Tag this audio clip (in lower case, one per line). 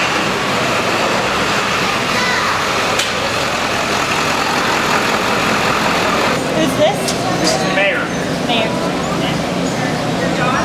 speech
truck